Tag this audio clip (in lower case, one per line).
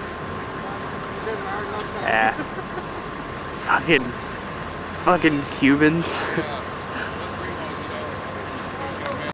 speech